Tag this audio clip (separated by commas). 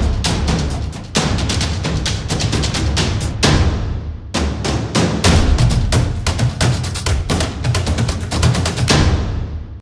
Music